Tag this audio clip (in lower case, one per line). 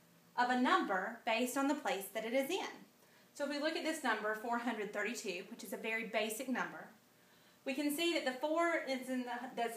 speech